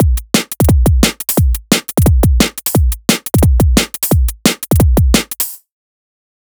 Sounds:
musical instrument, drum kit, music, percussion

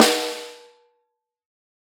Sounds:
musical instrument, percussion, drum, music, snare drum

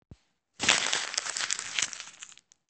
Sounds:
crinkling

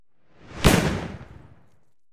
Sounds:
fireworks, explosion

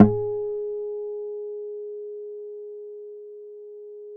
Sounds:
music, musical instrument, acoustic guitar, plucked string instrument, guitar

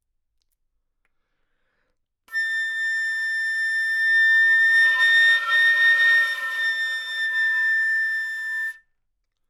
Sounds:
music, woodwind instrument, musical instrument

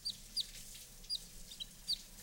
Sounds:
bird call, animal, tweet, bird, wild animals

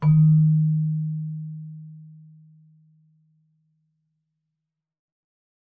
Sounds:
music, keyboard (musical), musical instrument

